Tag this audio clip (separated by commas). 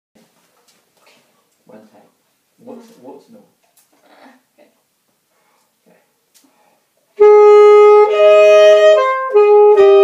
playing saxophone